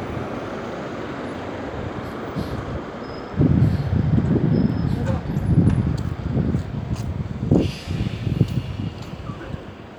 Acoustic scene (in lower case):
street